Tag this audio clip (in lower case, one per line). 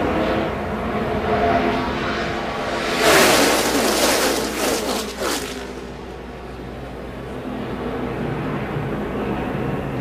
speech